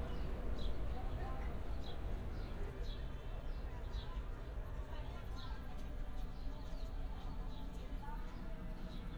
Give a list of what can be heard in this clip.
person or small group talking